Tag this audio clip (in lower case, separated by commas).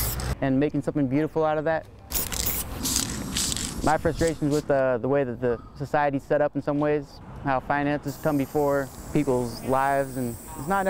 hiss, speech